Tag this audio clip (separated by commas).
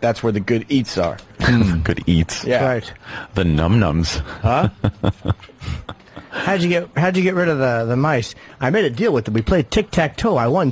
Speech